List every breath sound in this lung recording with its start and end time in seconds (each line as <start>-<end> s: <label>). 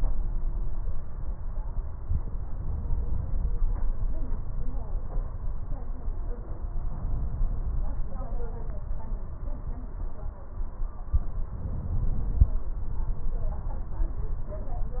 6.71-8.03 s: inhalation
11.28-12.60 s: inhalation
11.28-12.60 s: crackles